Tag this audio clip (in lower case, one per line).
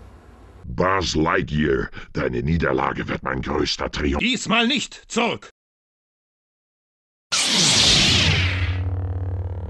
speech